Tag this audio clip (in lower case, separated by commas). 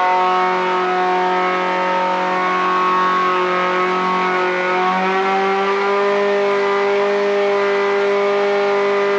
vehicle, auto racing, car